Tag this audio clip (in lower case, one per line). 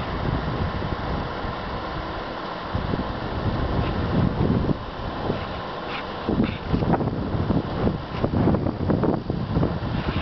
wind noise
wind noise (microphone)